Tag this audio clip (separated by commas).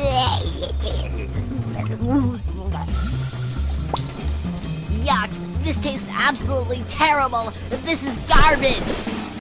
Music, Speech, Gurgling